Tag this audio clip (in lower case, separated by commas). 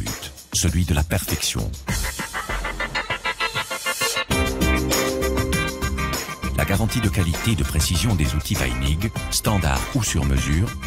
speech, music